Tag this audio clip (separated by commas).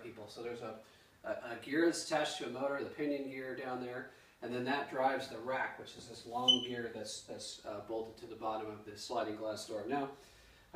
Speech